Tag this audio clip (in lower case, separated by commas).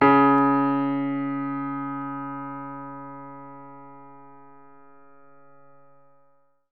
musical instrument, keyboard (musical), piano, music